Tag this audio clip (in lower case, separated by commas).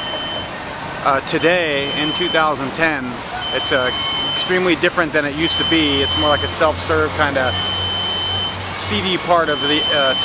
car, vehicle, speech